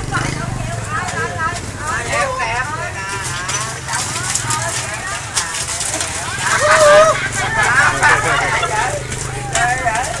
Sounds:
Stir

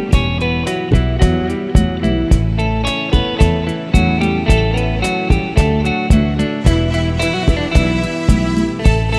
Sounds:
Dance music, Music, Funk

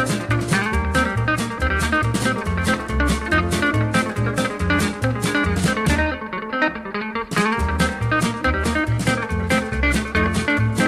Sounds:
Music, Guitar, Swing music

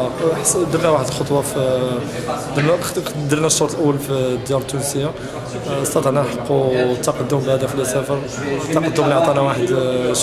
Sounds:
Speech

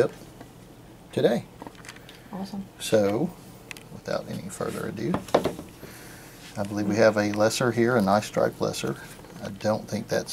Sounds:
Speech, inside a small room

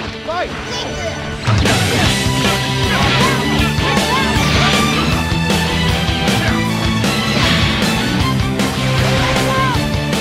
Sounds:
Speech, Music

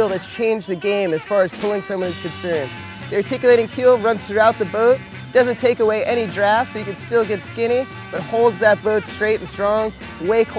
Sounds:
Music, Speech

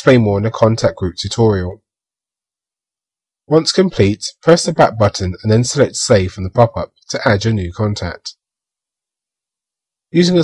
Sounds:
inside a small room, Speech

